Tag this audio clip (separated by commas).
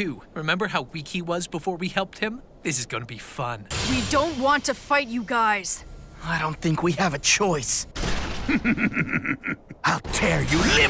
Speech